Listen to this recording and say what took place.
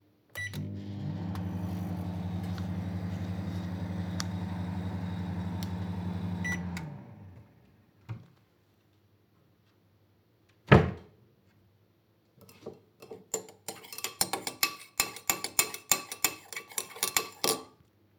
A microwave was used briefly. I opened a wardrobe and handled some items. Cutlery sounds occurred while moving utensils.